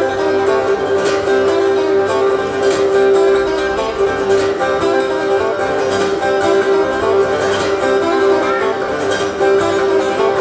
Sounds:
guitar
musical instrument
music
acoustic guitar

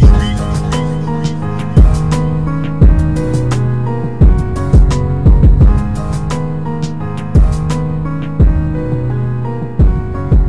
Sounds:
music

